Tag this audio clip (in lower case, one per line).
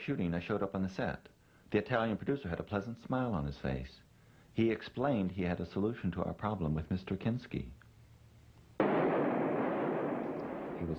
speech